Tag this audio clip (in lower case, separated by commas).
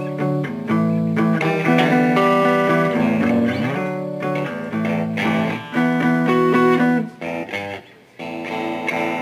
musical instrument, strum, electric guitar, speech, guitar, plucked string instrument, acoustic guitar, music